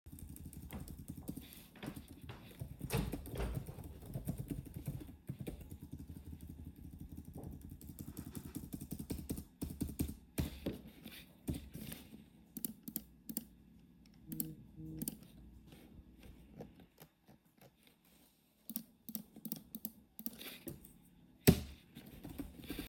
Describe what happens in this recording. I am sitting at a desk typing on a computer keyboard. At one point a nearby drawer was close. While typing, I occasionally click the mouse. Overlapping sounds